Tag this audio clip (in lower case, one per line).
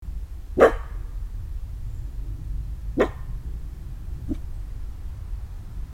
pets
animal
dog